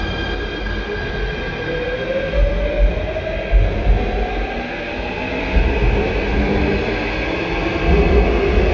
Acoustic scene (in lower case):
subway station